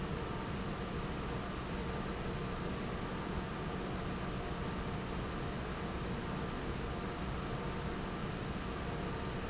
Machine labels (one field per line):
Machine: fan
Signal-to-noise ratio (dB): -6 dB